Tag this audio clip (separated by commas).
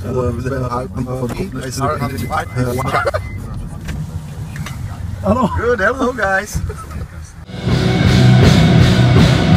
Car, Music, Speech